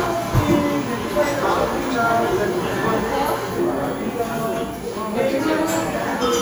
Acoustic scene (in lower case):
cafe